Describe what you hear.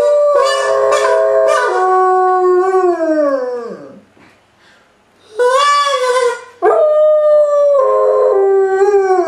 A dog howls and a harmonica is played